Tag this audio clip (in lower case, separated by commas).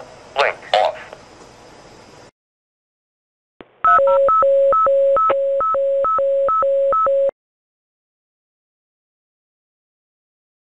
speech